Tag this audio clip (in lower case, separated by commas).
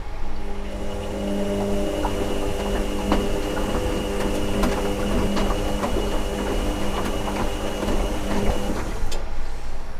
engine